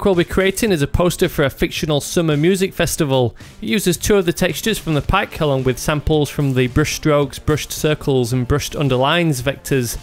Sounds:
Music, Speech

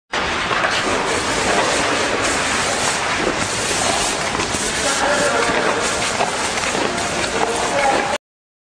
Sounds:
Speech

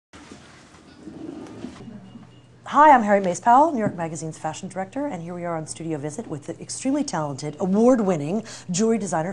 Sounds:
Speech

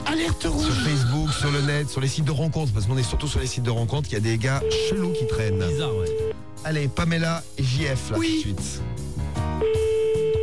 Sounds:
Music, Speech

